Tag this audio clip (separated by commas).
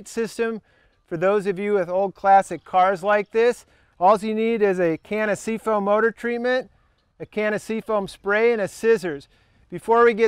Speech